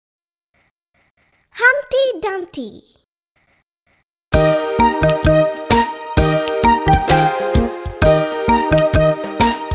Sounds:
child speech, music

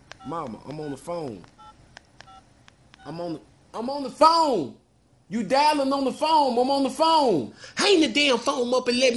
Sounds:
dtmf, speech

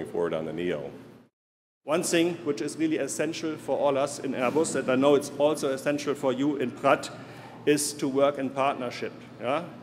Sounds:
speech

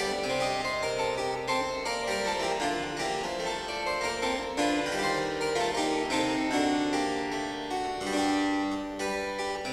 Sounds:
keyboard (musical), harpsichord, playing harpsichord

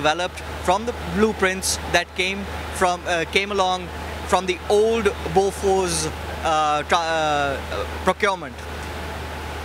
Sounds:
inside a large room or hall, speech

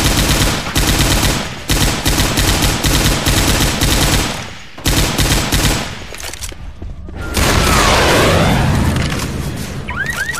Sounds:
speech

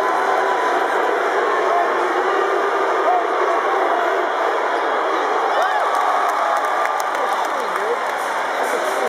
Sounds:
speech

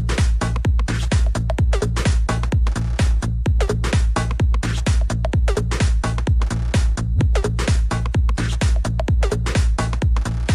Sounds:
music, electronic music, techno

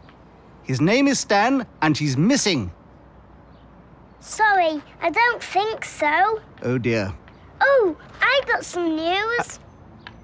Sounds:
speech

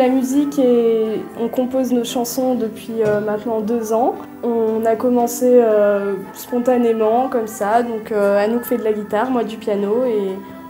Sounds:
speech, music

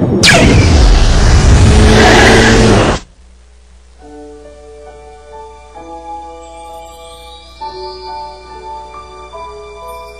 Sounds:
chime

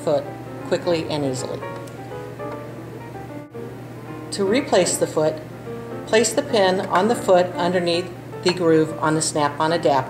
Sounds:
speech, music

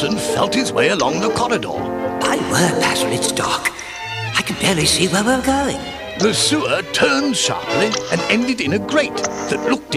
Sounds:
music, speech

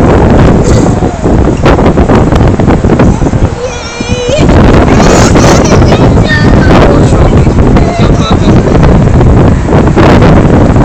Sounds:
speech

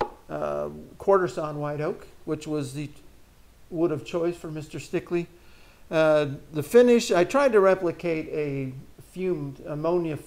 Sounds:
speech

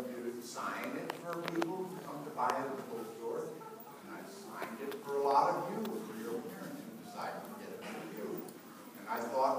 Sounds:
speech

